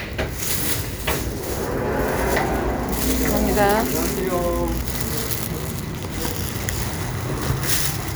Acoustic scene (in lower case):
street